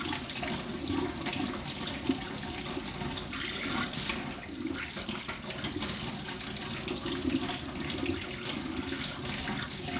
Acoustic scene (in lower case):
kitchen